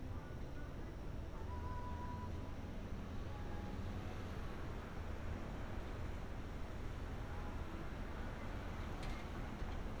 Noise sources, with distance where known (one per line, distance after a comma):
music from an unclear source